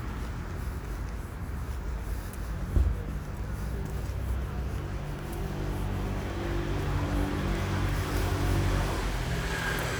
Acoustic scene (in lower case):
street